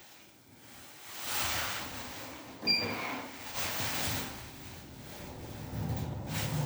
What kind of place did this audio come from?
elevator